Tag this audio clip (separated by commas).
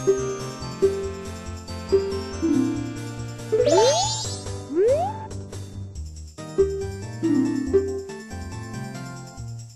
Music